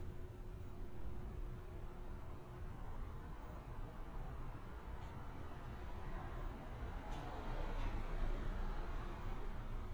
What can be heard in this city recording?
background noise